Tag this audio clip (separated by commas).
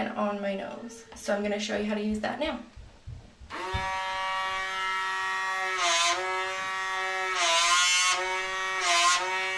Speech, inside a small room, electric razor